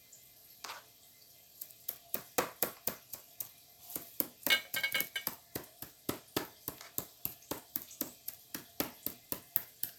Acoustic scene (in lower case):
kitchen